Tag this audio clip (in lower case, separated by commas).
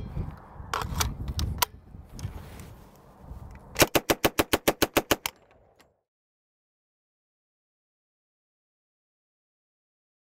machine gun shooting